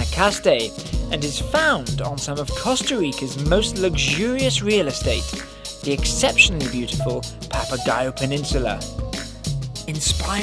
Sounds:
music, speech

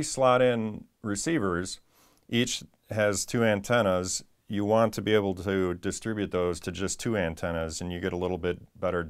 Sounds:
speech

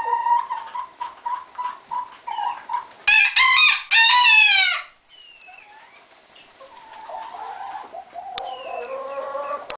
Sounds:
crowing, chicken crowing, rooster, fowl, cluck

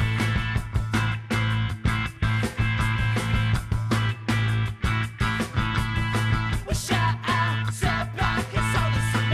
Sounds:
music, rhythm and blues, soul music

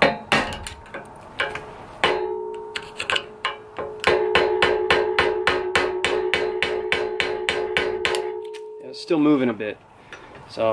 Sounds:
inside a small room, speech

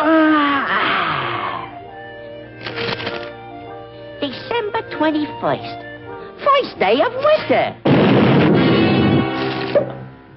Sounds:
music, speech

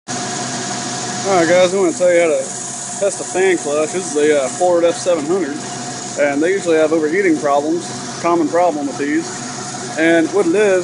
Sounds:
vehicle, outside, urban or man-made, speech

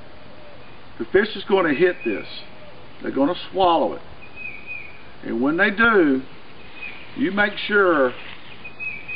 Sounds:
speech, outside, rural or natural

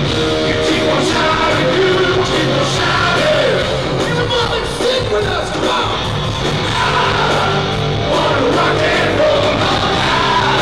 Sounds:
music, rock and roll

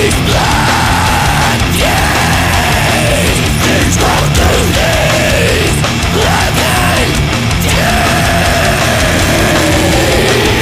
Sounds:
music, exciting music

